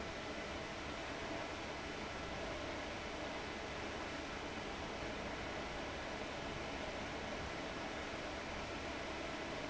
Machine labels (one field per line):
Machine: fan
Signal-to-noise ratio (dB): 6 dB